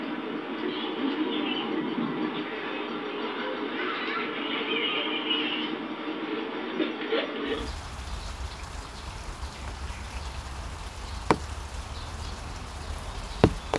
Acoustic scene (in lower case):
park